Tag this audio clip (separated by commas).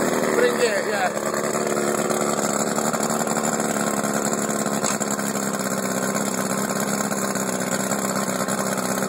Speech